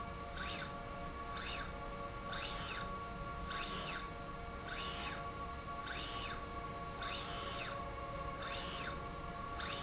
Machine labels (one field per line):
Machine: slide rail